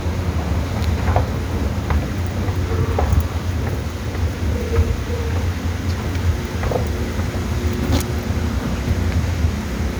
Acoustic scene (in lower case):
subway station